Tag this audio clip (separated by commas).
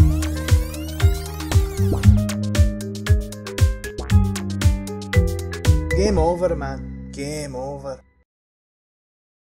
Music, Speech